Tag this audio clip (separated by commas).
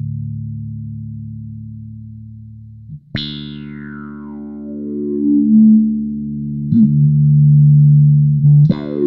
Effects unit, Music, Musical instrument